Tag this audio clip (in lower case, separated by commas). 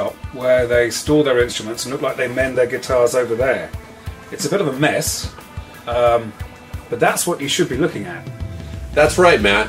speech, music